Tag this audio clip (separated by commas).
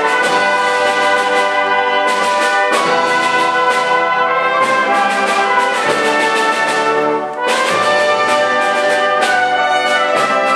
Brass instrument, Percussion, Musical instrument, Music, Orchestra, Trumpet